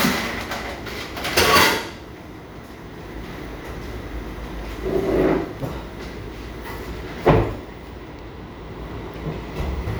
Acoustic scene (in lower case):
cafe